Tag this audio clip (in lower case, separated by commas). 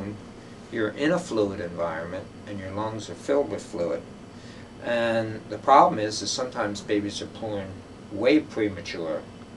speech